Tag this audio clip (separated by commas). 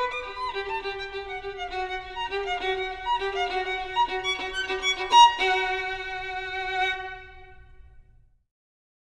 Violin, Music, Musical instrument